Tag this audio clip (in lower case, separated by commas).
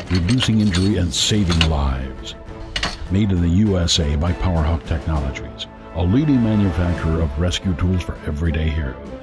speech, music, tools